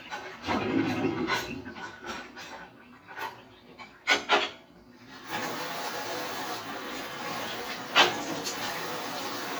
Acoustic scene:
kitchen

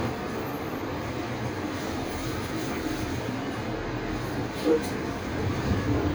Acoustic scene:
bus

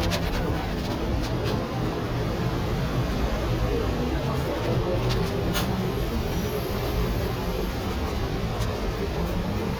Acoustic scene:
bus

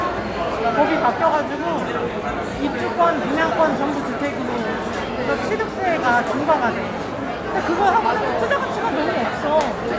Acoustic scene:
crowded indoor space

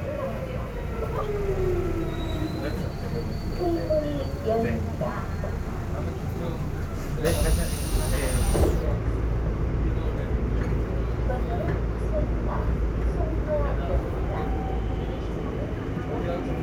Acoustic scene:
subway train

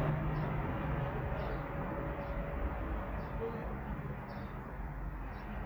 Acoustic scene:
residential area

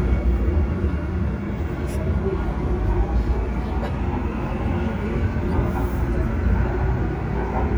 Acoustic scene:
subway train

